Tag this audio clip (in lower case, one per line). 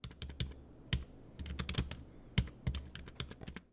computer keyboard
home sounds
typing